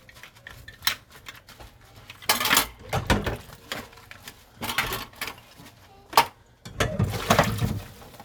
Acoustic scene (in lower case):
kitchen